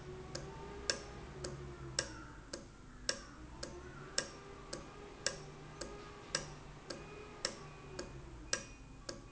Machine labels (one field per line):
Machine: valve